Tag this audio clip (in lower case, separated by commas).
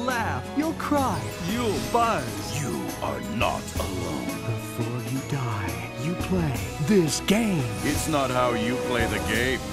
music, speech